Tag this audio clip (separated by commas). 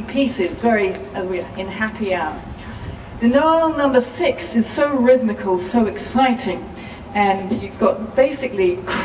Speech